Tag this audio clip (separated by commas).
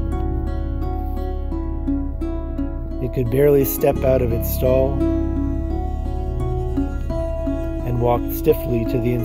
Music, Speech